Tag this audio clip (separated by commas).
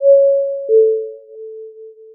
Domestic sounds, Door, Doorbell, Alarm